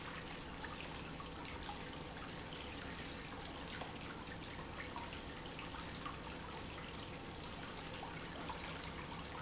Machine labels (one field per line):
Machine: pump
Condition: normal